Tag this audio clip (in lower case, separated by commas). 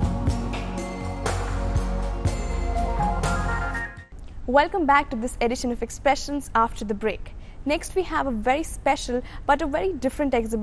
speech, music